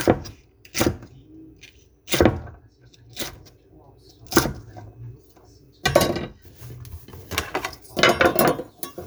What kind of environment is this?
kitchen